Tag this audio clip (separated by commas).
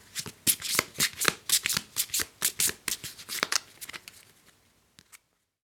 Domestic sounds